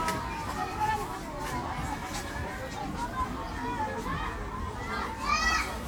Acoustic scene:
park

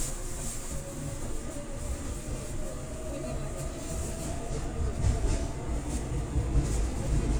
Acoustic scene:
subway train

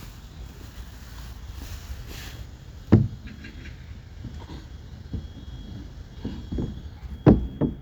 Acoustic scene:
park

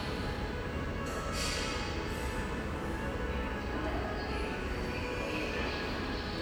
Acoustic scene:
subway station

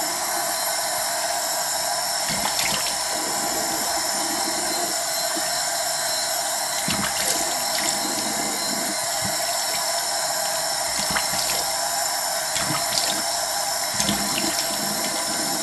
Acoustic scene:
restroom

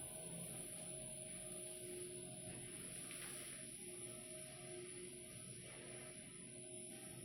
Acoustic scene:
elevator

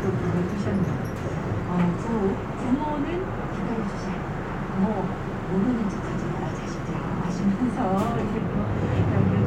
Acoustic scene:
bus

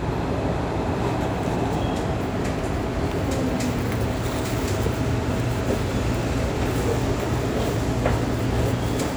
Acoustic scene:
subway station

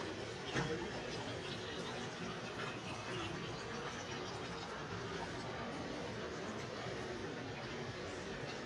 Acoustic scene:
residential area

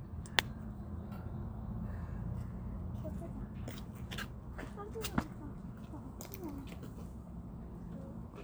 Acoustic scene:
park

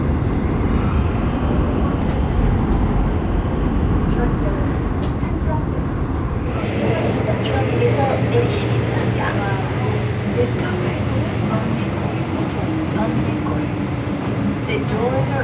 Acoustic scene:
subway train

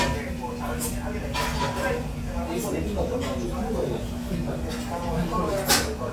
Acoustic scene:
crowded indoor space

